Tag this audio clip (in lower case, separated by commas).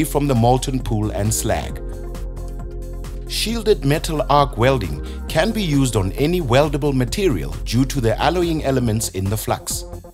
arc welding